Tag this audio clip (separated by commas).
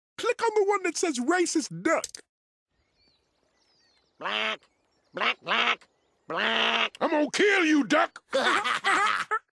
Duck, Quack, Speech